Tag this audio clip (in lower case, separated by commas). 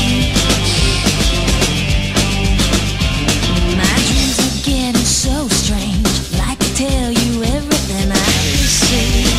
funk, music